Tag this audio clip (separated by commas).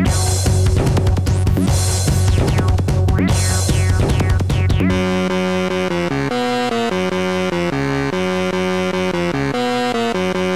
Music, Electronic dance music, Electronic music, Electronica